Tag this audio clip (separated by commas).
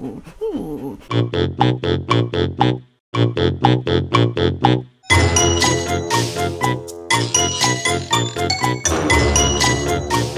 Music